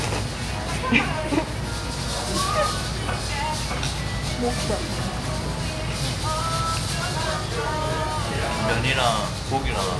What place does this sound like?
restaurant